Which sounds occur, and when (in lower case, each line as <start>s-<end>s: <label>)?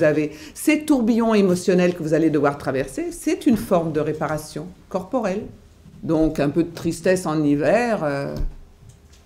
0.0s-0.2s: woman speaking
0.0s-9.2s: mechanisms
0.6s-4.7s: woman speaking
4.2s-4.3s: generic impact sounds
4.9s-5.6s: woman speaking
5.9s-8.6s: woman speaking
8.3s-8.5s: generic impact sounds
8.9s-9.2s: generic impact sounds